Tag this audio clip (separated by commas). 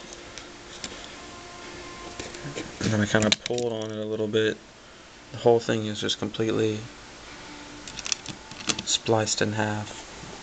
Speech